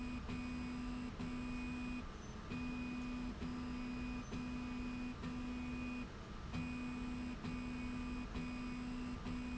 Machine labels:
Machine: slide rail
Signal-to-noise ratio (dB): 6 dB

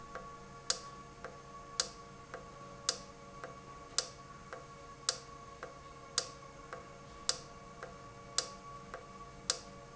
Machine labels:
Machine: valve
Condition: normal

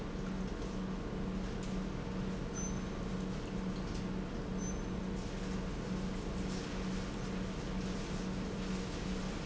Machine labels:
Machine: pump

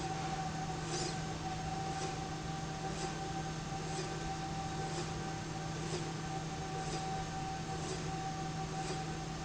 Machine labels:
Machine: slide rail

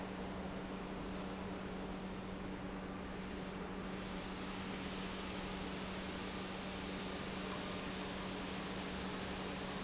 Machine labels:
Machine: pump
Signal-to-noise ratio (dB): 0 dB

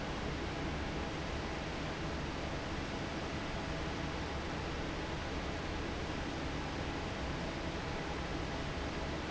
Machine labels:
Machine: fan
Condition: normal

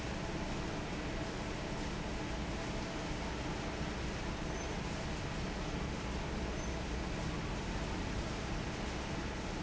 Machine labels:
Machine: fan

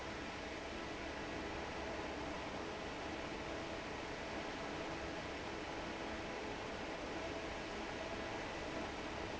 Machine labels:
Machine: fan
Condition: normal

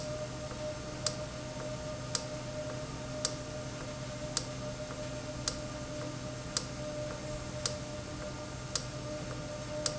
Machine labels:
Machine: valve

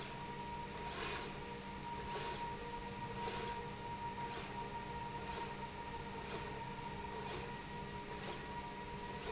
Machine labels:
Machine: slide rail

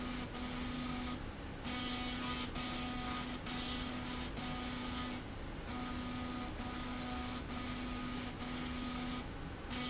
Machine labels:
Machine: slide rail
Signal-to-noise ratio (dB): 0 dB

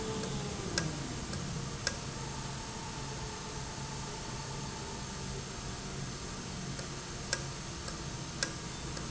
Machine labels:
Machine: valve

